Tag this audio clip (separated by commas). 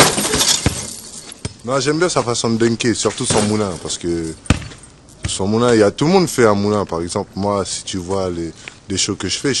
Door, Speech